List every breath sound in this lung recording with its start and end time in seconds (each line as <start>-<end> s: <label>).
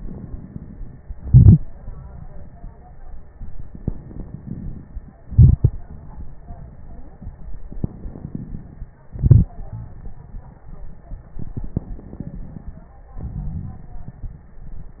1.16-1.67 s: exhalation
3.72-5.22 s: crackles
3.73-5.25 s: inhalation
5.22-5.81 s: exhalation
5.25-5.86 s: crackles
7.76-9.05 s: crackles
7.77-9.05 s: inhalation
9.06-9.97 s: exhalation
11.45-12.94 s: inhalation
11.45-12.94 s: crackles
13.18-14.16 s: exhalation
13.18-14.16 s: crackles